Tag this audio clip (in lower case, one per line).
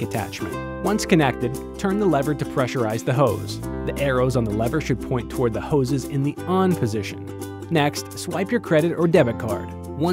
speech
music